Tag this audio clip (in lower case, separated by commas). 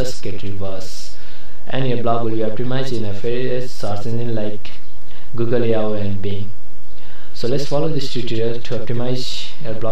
speech